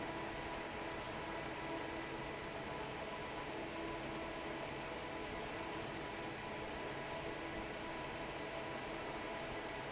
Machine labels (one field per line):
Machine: fan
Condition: normal